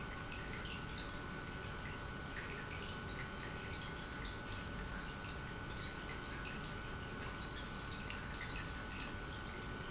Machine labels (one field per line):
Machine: pump